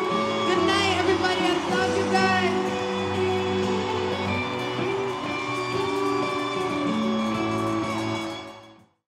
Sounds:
Music, Speech

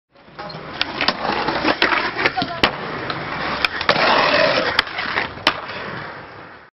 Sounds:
Speech

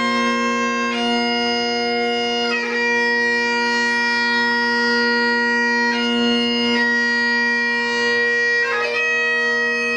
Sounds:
Bagpipes, Music

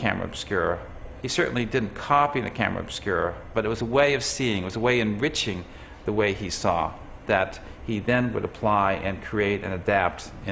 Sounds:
Speech

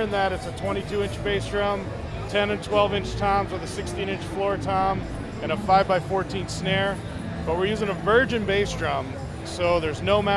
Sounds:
Speech, Music

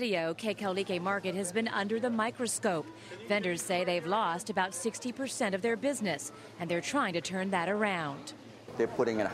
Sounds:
Speech

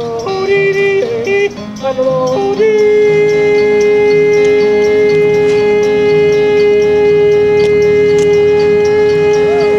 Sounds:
Theremin, Music

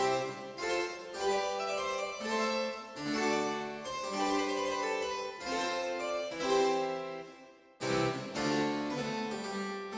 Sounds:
playing harpsichord

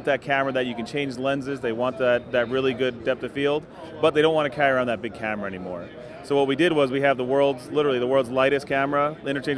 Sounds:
Speech

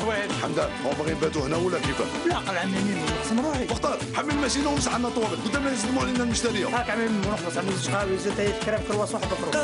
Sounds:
Speech, Music

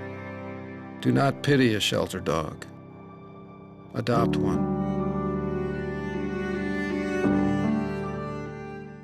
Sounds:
Speech, Music

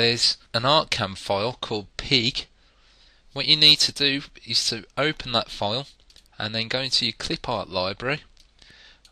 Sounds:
Speech

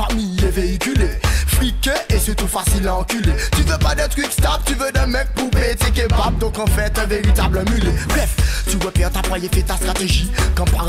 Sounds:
Music

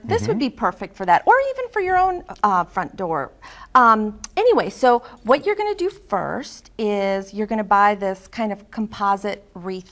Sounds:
Speech

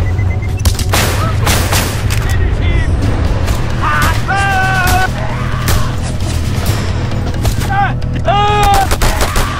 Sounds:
Fusillade

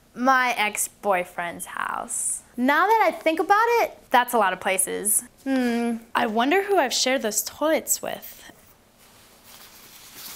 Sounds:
Speech

